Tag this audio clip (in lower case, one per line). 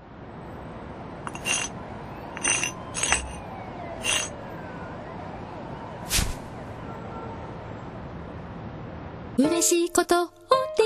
music